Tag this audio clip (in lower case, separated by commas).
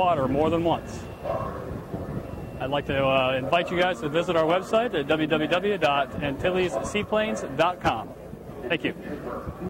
speech